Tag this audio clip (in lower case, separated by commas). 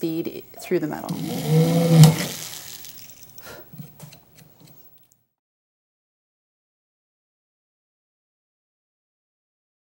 drill, tools, speech